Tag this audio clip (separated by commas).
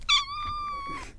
Cat, Animal, pets, Meow